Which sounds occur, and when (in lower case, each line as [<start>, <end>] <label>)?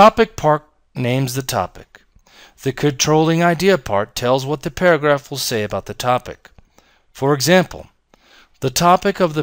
[0.01, 0.60] man speaking
[0.01, 9.42] background noise
[0.87, 1.84] man speaking
[1.91, 1.96] human sounds
[2.22, 2.48] breathing
[2.57, 6.38] man speaking
[6.34, 6.81] human sounds
[6.67, 7.04] breathing
[7.06, 7.83] man speaking
[8.07, 8.46] breathing
[8.09, 8.18] human sounds
[8.51, 9.42] man speaking